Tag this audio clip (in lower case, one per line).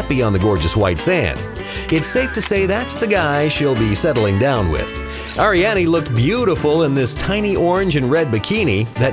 speech
music